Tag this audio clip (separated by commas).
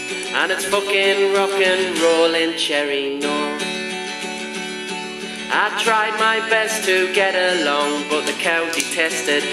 Music, Rock and roll